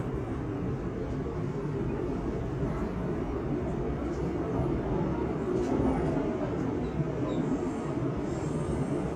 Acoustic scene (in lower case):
subway train